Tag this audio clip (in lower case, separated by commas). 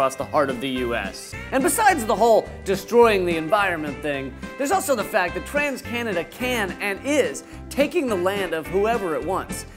music, speech